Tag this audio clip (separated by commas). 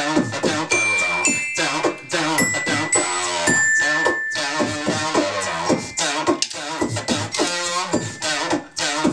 Music, Singing, inside a small room